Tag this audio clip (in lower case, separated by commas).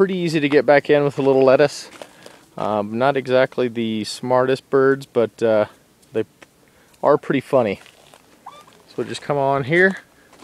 speech, bird